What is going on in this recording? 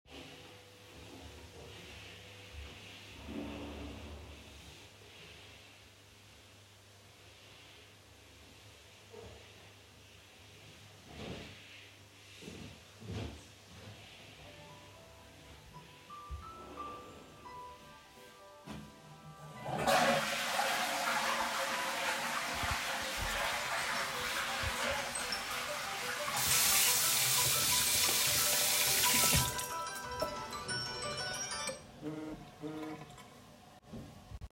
I was sitting on the toilet, while someone else was vacuum cleaning outside the bathroom. I than heard my phone ringing across the room. I flushed the toilet walked to the bathroom sink washed my hands under running water and than confirmed the call. At the same time the person outside was still vacuum cleaning till the end of the scene.